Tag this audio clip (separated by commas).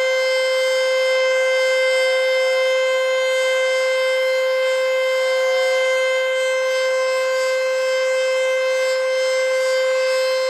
Siren